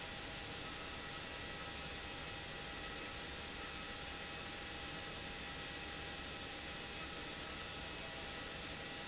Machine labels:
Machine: pump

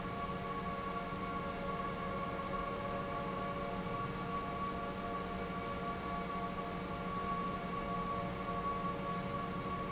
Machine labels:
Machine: pump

